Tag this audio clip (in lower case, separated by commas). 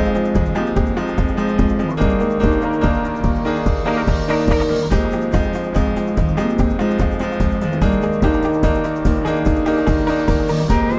music